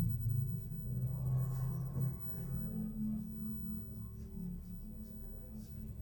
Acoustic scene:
elevator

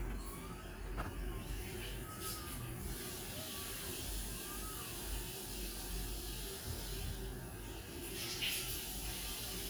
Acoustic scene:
restroom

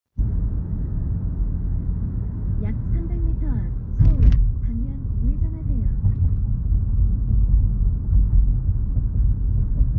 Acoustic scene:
car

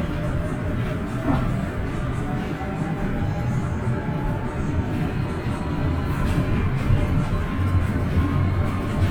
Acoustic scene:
bus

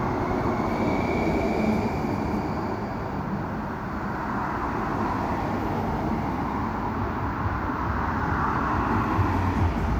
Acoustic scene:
street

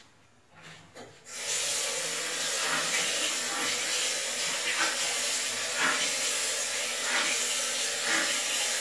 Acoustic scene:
restroom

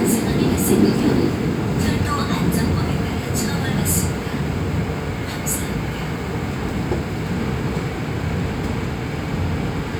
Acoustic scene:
subway train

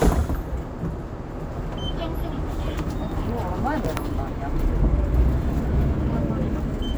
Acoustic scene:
bus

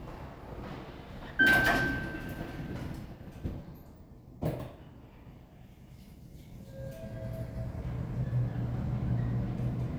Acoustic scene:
elevator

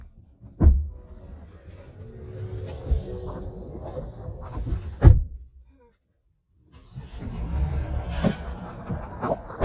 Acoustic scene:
car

